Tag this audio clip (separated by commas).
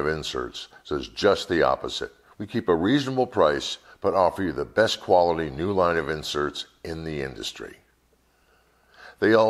Speech